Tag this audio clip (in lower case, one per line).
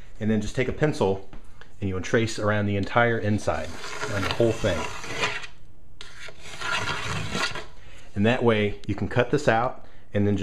speech